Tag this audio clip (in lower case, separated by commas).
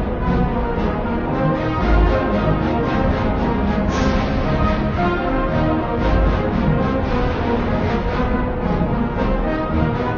music